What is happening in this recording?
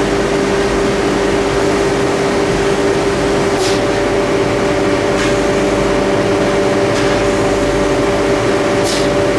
Something is humming and something is lightly sprayed in bursts